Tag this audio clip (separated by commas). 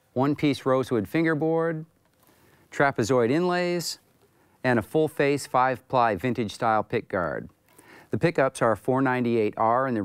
Speech